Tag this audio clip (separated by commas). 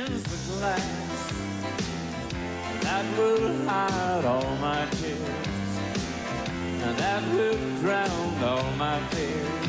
Music